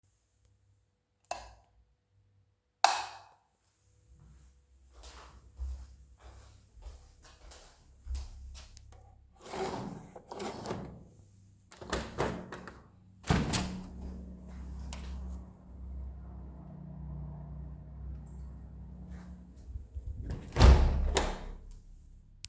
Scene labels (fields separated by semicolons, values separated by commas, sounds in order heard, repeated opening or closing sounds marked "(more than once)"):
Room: living room; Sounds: light switch, footsteps, window (more than once)